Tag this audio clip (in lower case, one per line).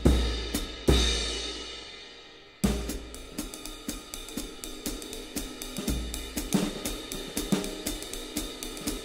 playing cymbal